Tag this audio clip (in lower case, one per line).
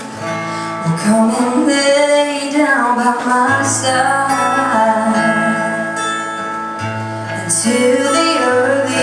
music
female singing